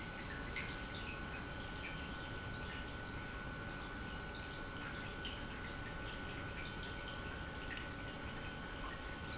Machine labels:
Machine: pump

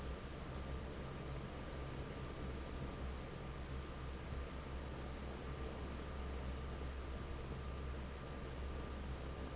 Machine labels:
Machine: fan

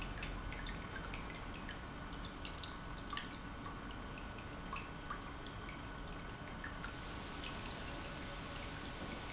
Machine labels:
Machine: pump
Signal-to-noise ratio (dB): 6 dB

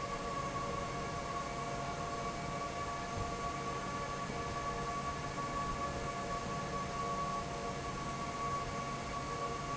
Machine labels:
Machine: fan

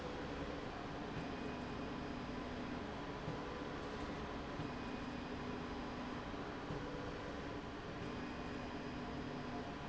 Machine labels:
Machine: slide rail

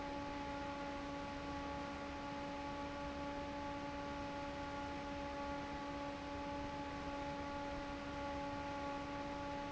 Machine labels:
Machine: fan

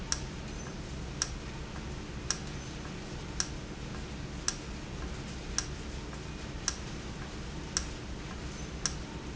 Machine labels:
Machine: valve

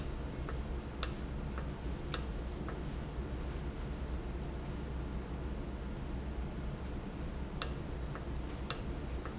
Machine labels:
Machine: valve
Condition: normal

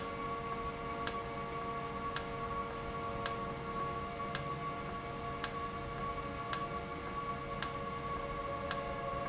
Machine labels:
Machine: valve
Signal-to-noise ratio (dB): -6 dB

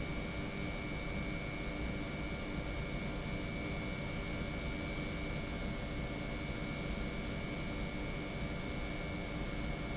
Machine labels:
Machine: pump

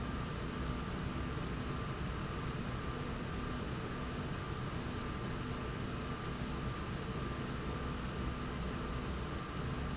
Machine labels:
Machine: slide rail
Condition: normal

